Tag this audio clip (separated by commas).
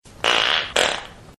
Fart